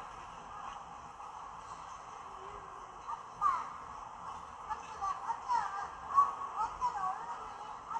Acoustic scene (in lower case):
park